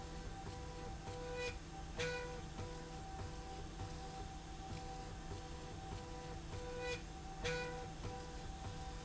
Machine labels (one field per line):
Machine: slide rail